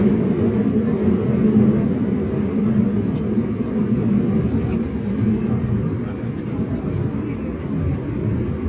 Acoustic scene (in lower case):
subway train